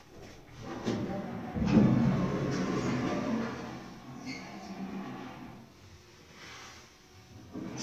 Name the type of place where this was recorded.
elevator